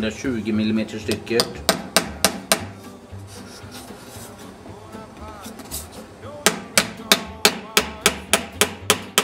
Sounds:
wood

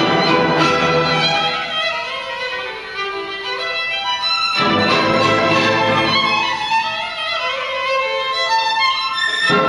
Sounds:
fiddle
musical instrument
music

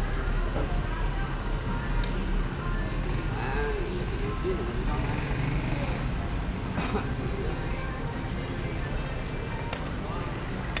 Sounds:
music
speech

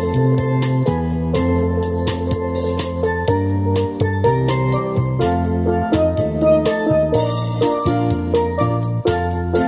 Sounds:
musical instrument
music

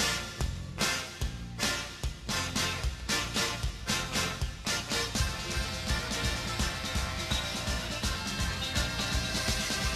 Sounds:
music

